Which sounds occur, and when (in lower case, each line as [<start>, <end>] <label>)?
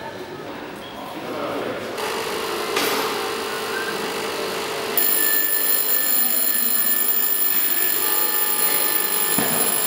[0.00, 0.50] human voice
[0.00, 9.85] mechanisms
[0.79, 1.00] squeal
[0.92, 1.96] male speech
[2.71, 3.10] generic impact sounds
[3.43, 3.90] squeal
[4.92, 9.85] telephone bell ringing
[9.36, 9.61] generic impact sounds